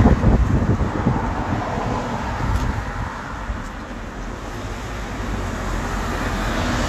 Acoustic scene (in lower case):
street